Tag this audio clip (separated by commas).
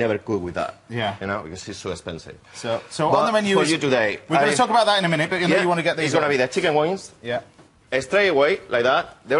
Speech